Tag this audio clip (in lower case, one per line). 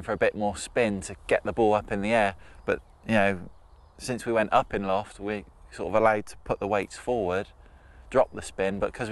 speech